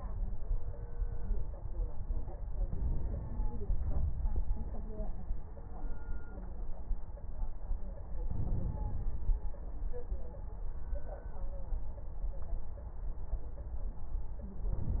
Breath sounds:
Inhalation: 2.67-3.53 s, 8.30-9.39 s

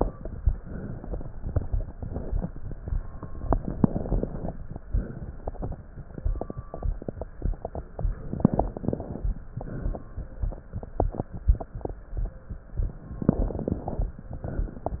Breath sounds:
Inhalation: 3.42-4.54 s, 8.21-9.29 s, 13.18-14.09 s
Exhalation: 0.54-1.32 s, 4.79-5.77 s, 9.51-10.07 s, 14.39-15.00 s

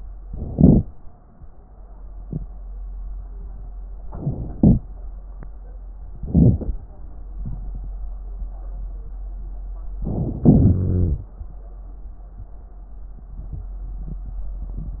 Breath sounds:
Inhalation: 0.26-0.79 s, 4.12-4.81 s, 6.25-6.77 s, 10.00-10.82 s
Exhalation: 10.79-11.25 s
Wheeze: 10.79-11.25 s

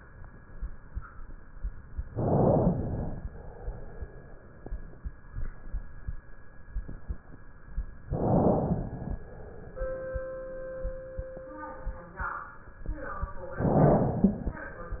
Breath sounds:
Inhalation: 2.02-3.16 s, 8.01-9.21 s, 13.54-14.60 s
Exhalation: 3.26-4.64 s, 9.23-10.61 s, 14.60-15.00 s

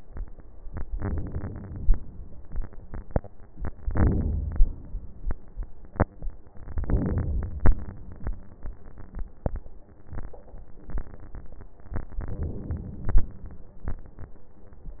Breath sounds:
Inhalation: 0.91-1.95 s, 3.84-4.88 s, 6.66-7.70 s, 12.20-13.24 s

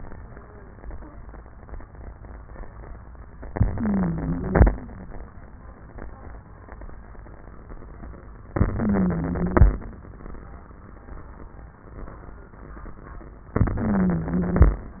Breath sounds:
Inhalation: 3.53-4.75 s, 8.53-9.75 s, 13.57-14.78 s
Wheeze: 3.53-4.75 s, 8.53-9.75 s, 13.57-14.78 s

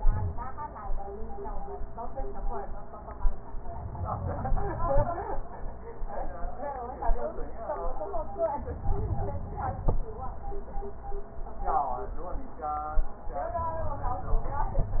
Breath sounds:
Inhalation: 3.77-5.44 s, 8.41-10.08 s

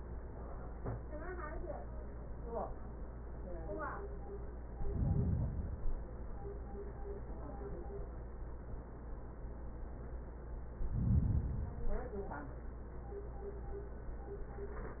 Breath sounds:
Inhalation: 4.60-6.10 s, 10.72-12.22 s

